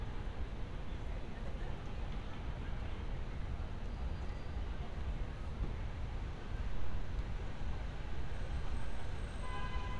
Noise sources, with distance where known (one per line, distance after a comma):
background noise